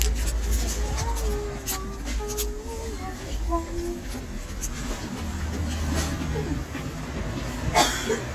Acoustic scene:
crowded indoor space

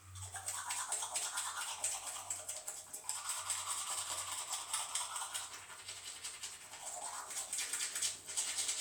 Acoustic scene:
restroom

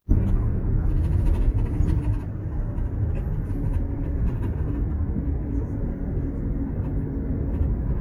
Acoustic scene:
bus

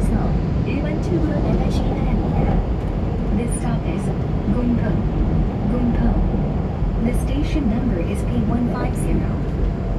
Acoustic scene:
subway train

